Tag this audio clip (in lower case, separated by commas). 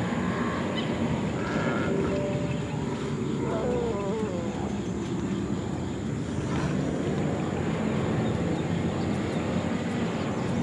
outside, rural or natural, music